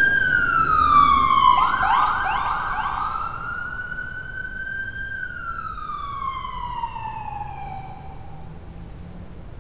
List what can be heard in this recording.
siren